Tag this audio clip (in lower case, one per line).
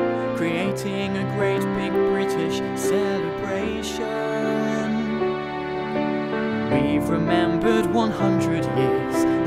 music
wedding music